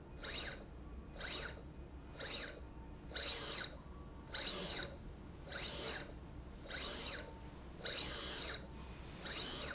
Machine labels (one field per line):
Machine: slide rail